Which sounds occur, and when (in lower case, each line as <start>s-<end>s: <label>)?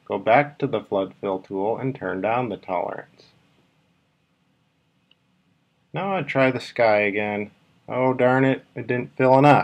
0.0s-9.6s: mechanisms
0.1s-3.3s: man speaking
3.5s-3.6s: generic impact sounds
5.0s-5.1s: clicking
5.9s-7.5s: man speaking
7.8s-8.6s: man speaking
8.7s-9.6s: man speaking